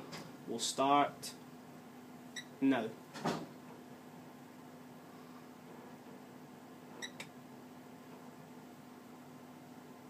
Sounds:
Speech, inside a small room

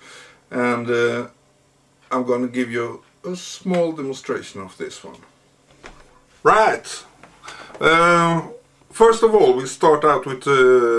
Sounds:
Speech

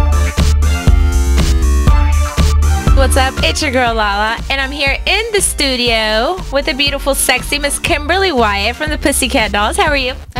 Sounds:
Speech, Music

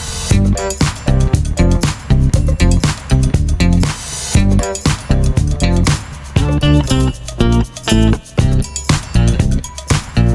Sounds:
Music

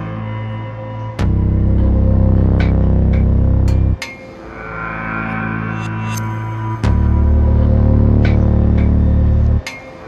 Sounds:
Tap, Sound effect, Music

